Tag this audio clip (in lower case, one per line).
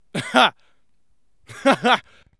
chuckle
laughter
human voice